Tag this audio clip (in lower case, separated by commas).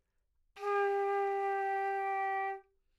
music, woodwind instrument, musical instrument